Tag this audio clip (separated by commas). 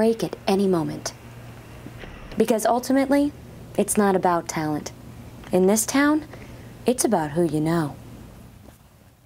Speech